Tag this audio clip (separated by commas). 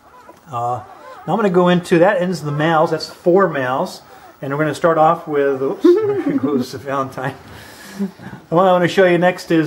Speech, Dog, pets, inside a small room